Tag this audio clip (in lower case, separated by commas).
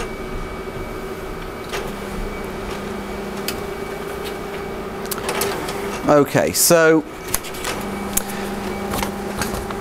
printer, speech, inside a small room